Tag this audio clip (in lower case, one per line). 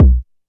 drum
percussion
bass drum
music
musical instrument